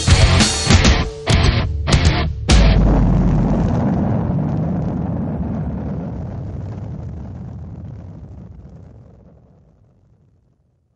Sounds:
Music

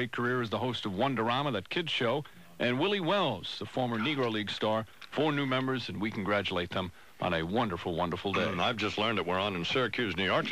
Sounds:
Speech, man speaking, monologue

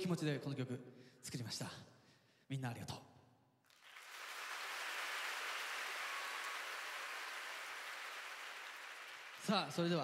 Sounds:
Speech

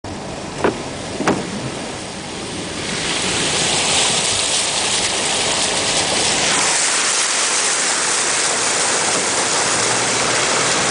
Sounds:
Rain, Car, Vehicle

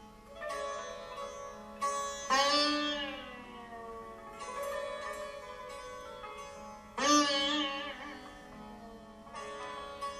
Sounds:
Plucked string instrument, Musical instrument, Bowed string instrument, Carnatic music, Sitar, Music

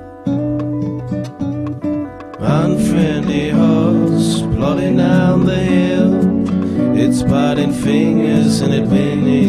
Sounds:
Music

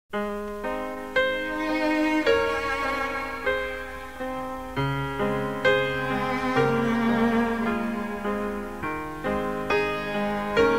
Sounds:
Cello

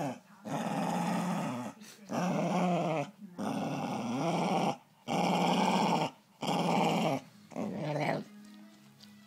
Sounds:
Domestic animals, Music, Animal, Dog, inside a small room

